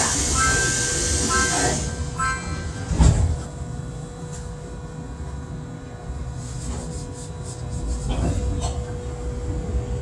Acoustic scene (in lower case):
subway train